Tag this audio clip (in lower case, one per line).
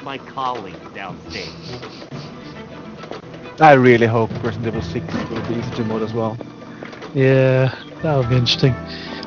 music
speech